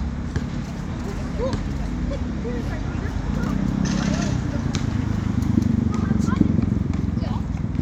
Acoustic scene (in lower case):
residential area